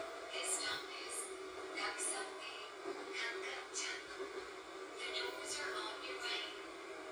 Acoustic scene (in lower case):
subway train